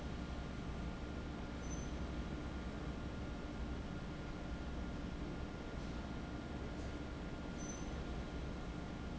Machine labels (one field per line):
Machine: fan